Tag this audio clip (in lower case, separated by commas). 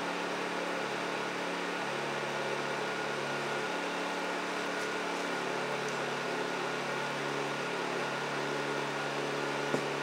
inside a small room